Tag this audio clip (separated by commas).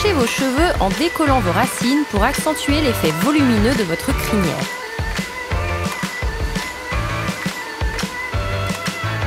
Speech, Music